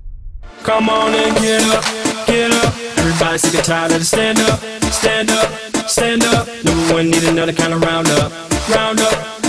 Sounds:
music
afrobeat

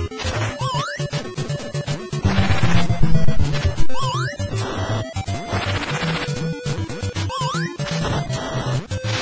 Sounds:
cacophony

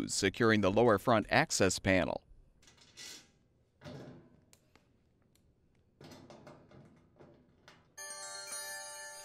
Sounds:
speech
music

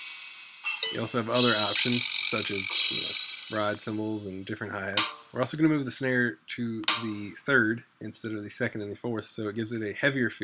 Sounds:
music
drum machine
drum kit
drum
speech

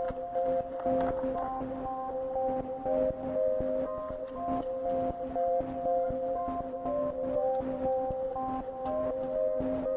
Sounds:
music

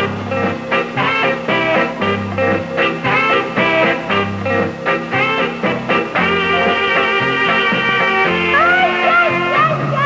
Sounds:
music

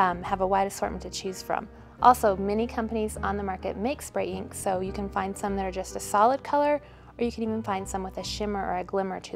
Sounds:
speech
music

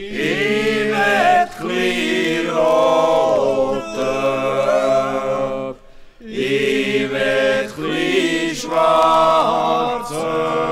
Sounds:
yodelling

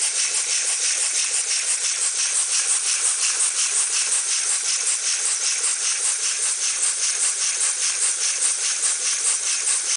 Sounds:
idling
engine

